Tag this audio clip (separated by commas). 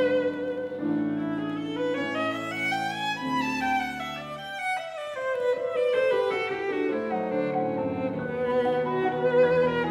Violin, Music, Musical instrument